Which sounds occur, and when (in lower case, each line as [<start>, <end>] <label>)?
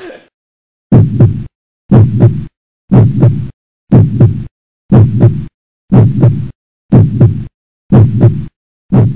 [0.00, 0.28] speech
[0.88, 1.47] heartbeat
[1.86, 2.48] heartbeat
[2.87, 3.51] heartbeat
[3.88, 4.47] heartbeat
[4.87, 5.48] heartbeat
[5.87, 6.51] heartbeat
[6.88, 7.47] heartbeat
[7.89, 8.51] heartbeat